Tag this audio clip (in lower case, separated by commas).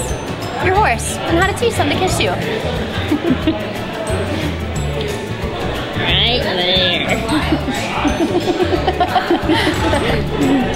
speech, music